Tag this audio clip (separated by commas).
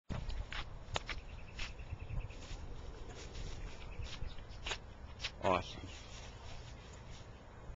Speech, Animal